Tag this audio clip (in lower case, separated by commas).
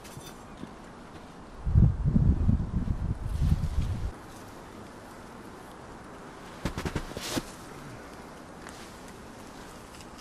bee or wasp, inside a small room